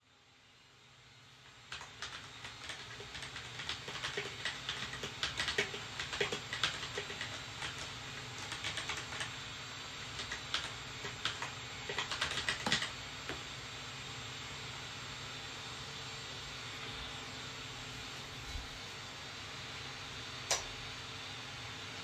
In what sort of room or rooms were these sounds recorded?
office